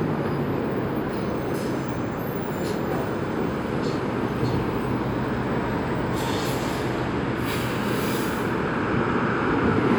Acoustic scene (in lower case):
street